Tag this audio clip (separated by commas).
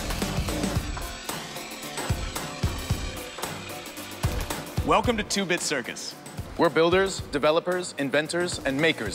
Music, Speech